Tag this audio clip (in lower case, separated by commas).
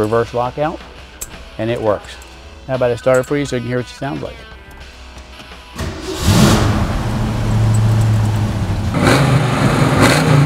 speech, music, outside, urban or man-made